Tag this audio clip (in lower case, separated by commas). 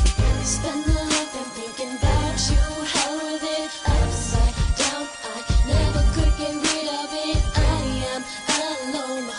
soundtrack music, music